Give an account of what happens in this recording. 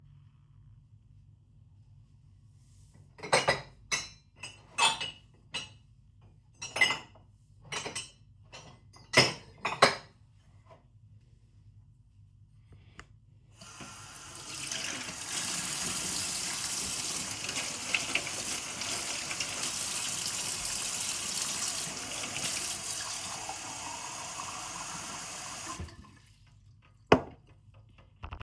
I took out a glass from the cupboard & filled it with water.